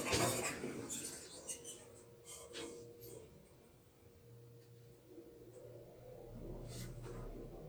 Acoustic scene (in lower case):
elevator